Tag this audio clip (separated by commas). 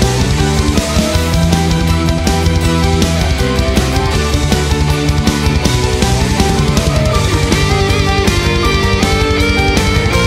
Heavy metal, Music